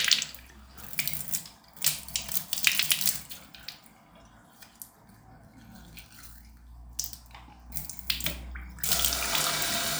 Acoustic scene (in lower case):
restroom